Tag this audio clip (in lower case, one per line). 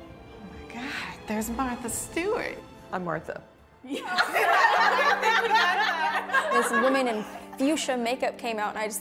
woman speaking